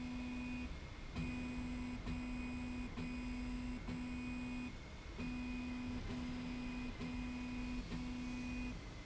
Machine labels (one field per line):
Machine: slide rail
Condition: normal